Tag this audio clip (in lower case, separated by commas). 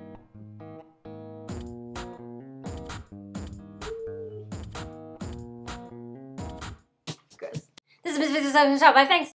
speech, music